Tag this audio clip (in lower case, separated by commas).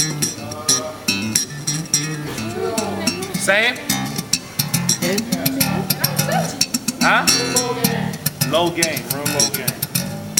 music, speech